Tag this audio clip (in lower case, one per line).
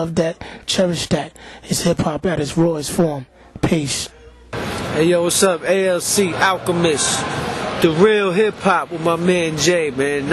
speech